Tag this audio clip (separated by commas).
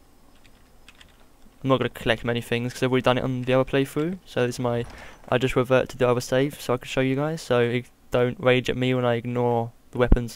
Speech